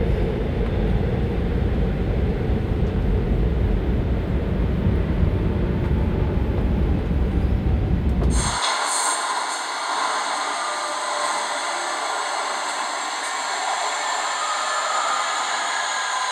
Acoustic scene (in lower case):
subway train